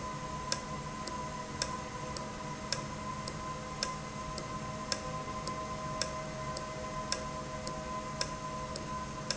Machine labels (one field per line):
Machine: valve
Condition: normal